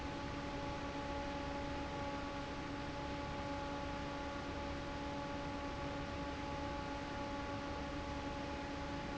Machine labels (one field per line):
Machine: fan